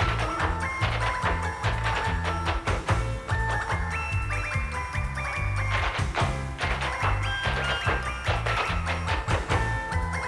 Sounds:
tap dancing

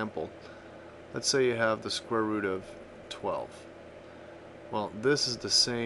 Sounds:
Speech

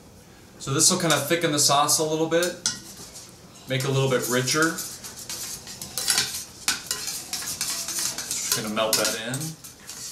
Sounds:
dishes, pots and pans, Cutlery

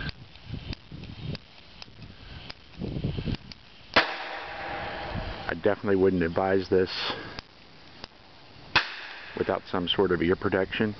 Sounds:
Explosion, Speech

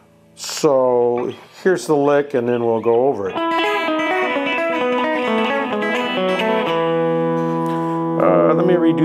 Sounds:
Strum, Music, Speech, Musical instrument, Guitar, Acoustic guitar, Plucked string instrument

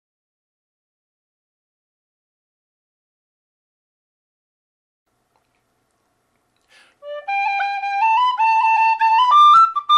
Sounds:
Wind instrument, Flute, Music, Musical instrument

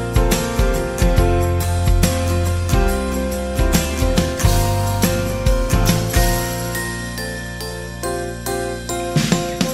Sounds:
Music

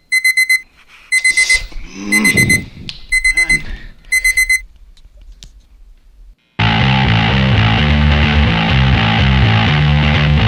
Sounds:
Music, inside a small room, Speech

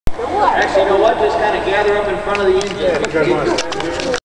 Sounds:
Speech

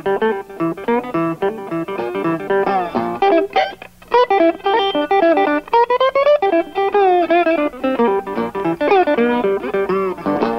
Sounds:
slide guitar

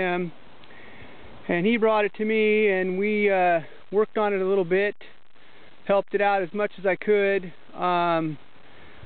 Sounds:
Speech

